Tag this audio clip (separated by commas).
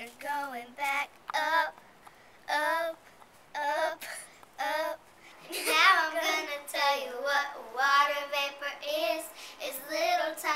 Speech